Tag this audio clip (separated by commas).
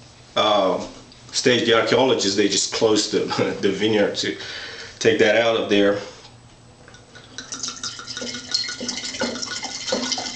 faucet